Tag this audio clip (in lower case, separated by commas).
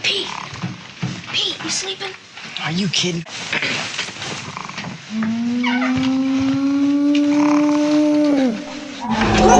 inside a small room, speech